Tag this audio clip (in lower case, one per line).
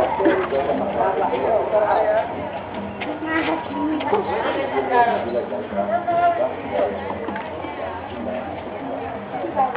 speech
music